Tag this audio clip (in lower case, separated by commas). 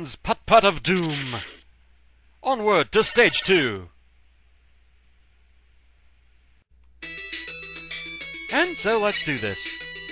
speech, music